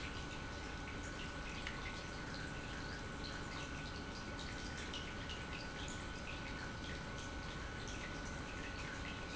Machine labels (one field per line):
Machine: pump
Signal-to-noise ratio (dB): 6 dB